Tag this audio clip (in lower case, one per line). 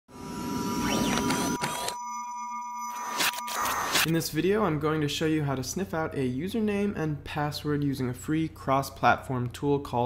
music
speech